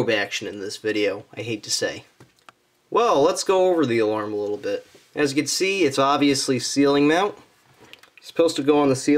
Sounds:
speech

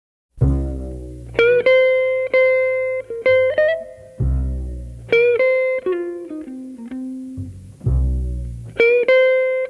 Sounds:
music

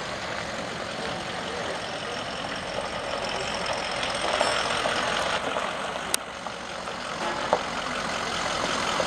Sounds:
outside, urban or man-made, truck, vehicle

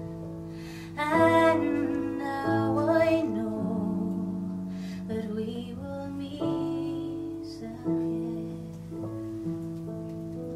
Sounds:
music

